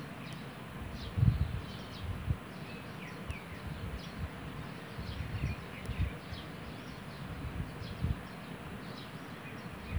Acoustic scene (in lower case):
park